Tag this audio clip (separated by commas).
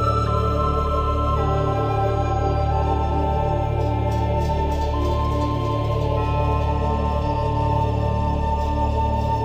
Background music, Music